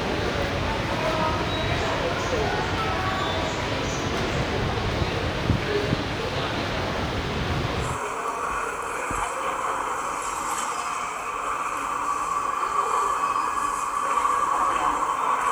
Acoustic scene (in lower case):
subway station